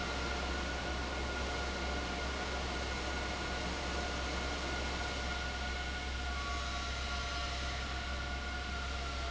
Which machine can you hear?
fan